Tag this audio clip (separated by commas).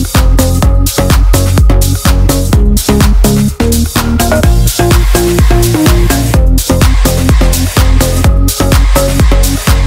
Dance music, Music